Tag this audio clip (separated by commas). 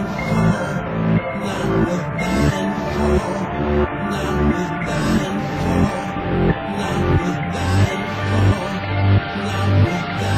Music